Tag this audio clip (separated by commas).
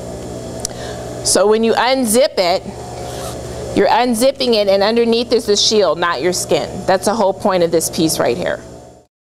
Speech